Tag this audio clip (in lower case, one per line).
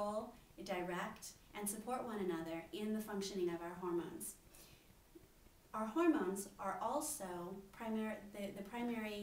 speech